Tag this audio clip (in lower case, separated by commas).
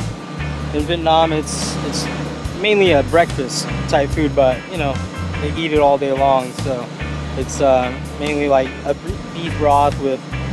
speech, music